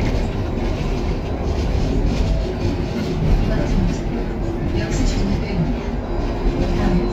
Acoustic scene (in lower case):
bus